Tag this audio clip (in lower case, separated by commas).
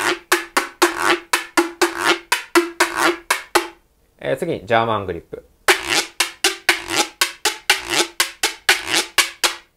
playing guiro